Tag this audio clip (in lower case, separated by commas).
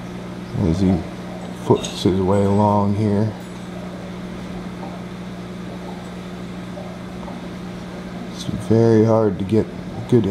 speech, outside, rural or natural